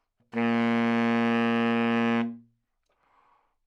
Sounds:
Musical instrument, Music, Wind instrument

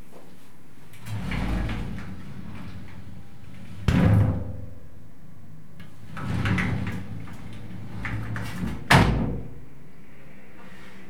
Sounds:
home sounds, Door, Sliding door

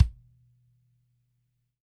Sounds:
Bass drum, Music, Musical instrument, Drum, Percussion

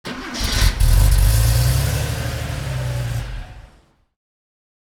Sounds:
Engine, Vehicle, Motor vehicle (road), Car

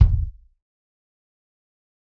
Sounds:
Bass drum, Drum, Music, Percussion, Musical instrument

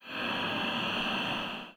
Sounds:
Respiratory sounds, Breathing

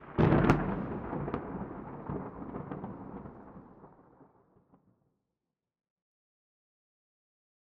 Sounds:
Thunder, Thunderstorm

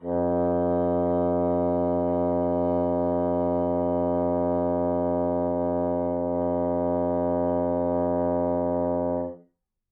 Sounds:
Music, Musical instrument, woodwind instrument

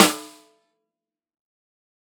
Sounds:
Music, Musical instrument, Snare drum, Percussion, Drum

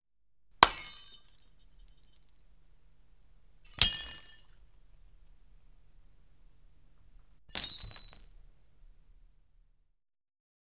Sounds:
Shatter, Glass

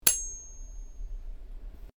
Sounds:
silverware, Domestic sounds

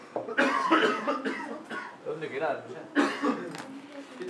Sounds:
Cough, Respiratory sounds

